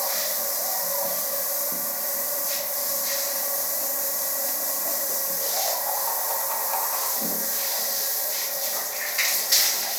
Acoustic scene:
restroom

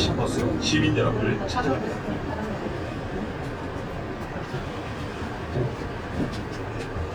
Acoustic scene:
bus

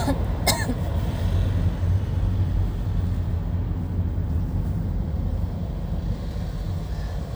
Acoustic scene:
car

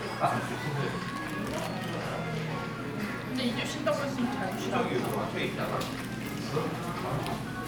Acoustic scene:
crowded indoor space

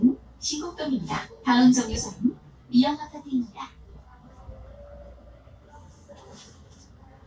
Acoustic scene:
bus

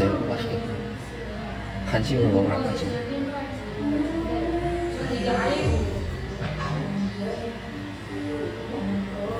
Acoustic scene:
cafe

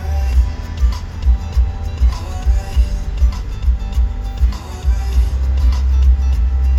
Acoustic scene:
car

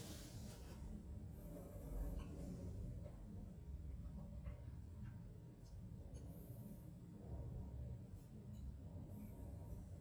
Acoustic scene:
elevator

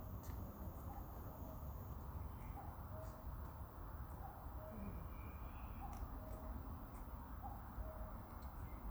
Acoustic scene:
park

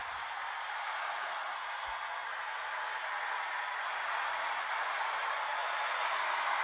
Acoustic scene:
street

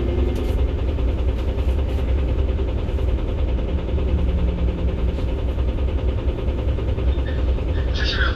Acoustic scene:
bus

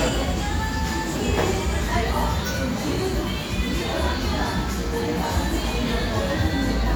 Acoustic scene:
cafe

